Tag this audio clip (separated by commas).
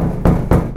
home sounds, Door, Knock